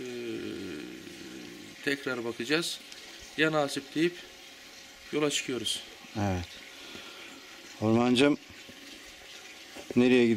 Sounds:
speech

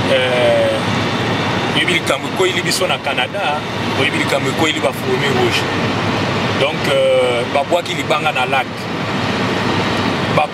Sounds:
speech

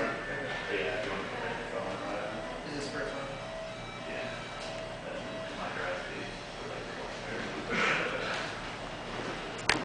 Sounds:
speech

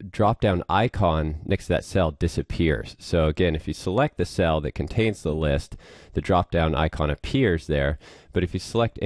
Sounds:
speech

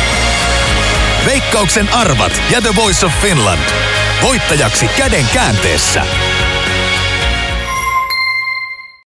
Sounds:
speech, music

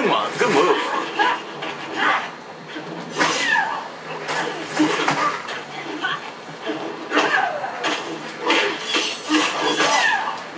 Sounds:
speech

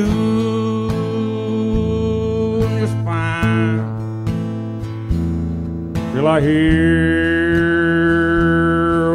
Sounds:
country, music

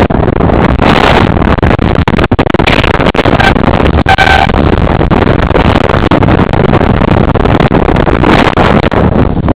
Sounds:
bus, vehicle

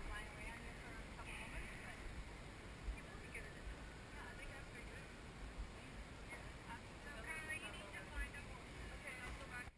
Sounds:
speech

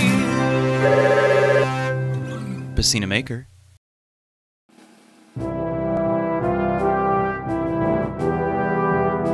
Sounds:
music, speech

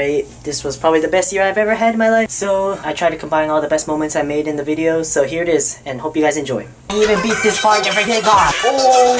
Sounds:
inside a large room or hall, music, speech

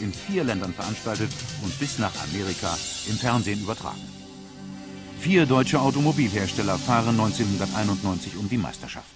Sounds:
music, speech

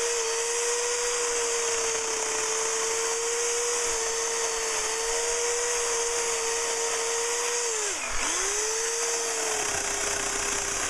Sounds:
chainsawing trees

